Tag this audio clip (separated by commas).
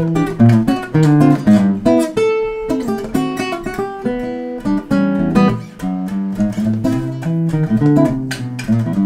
Guitar, Strum, Acoustic guitar, Musical instrument, Plucked string instrument, Music